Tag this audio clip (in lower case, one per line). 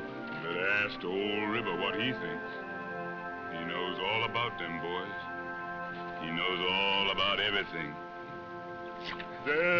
music
speech